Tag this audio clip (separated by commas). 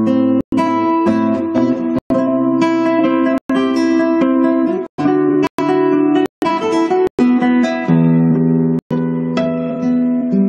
Plucked string instrument, Guitar, Strum, Music, Musical instrument